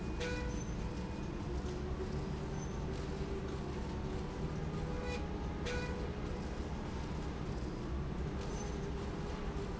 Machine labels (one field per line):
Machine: slide rail